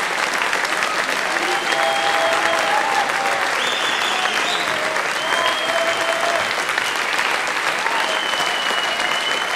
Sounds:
people clapping, applause

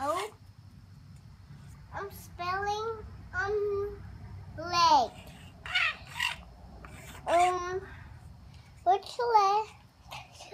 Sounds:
speech

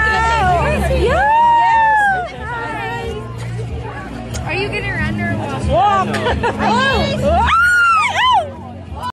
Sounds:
speech

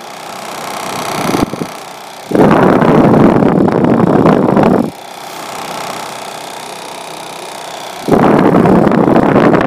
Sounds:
wind noise (microphone), wind

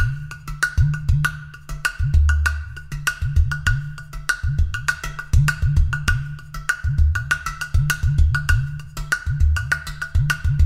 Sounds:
percussion, music

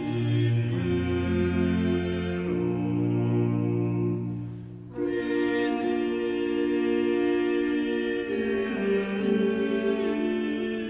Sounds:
tender music, music

